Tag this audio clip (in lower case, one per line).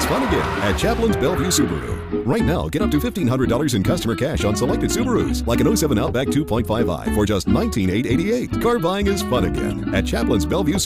speech
music